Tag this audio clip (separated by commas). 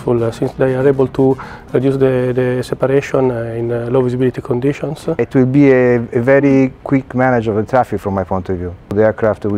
Speech, Music